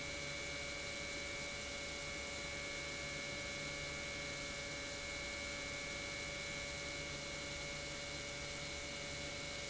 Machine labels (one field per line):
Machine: pump